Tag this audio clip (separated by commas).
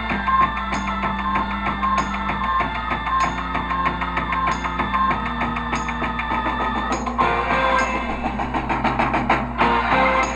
Music